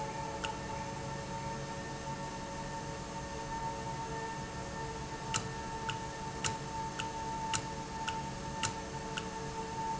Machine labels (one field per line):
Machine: valve